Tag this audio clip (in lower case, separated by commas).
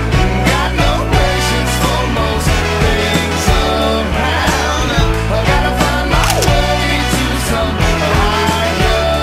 music